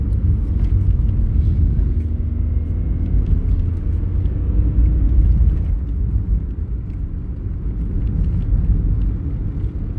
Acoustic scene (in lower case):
car